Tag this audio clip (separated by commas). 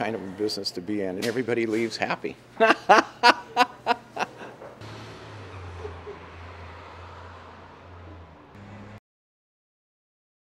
Speech